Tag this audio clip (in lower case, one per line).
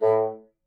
music
wind instrument
musical instrument